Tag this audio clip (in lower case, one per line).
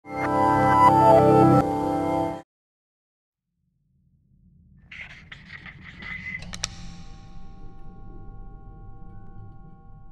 music